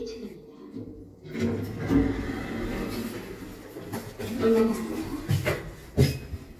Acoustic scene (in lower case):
elevator